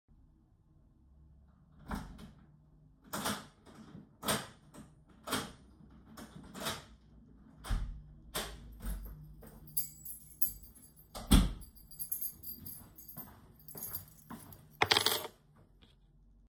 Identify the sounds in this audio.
door, keys, footsteps